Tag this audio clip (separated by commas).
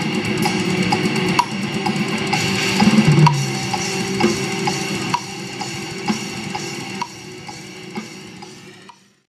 Bass drum, Drum kit, Snare drum, Percussion, Drum, Rimshot, Drum roll